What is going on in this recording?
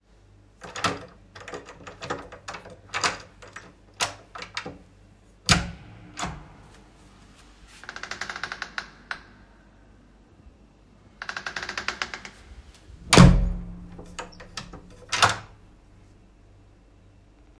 The phone was placed in the hallway while I used my keys at the door, opened it, and then closed it again.